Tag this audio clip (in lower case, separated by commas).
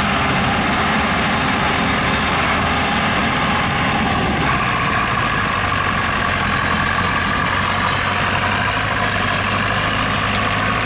clatter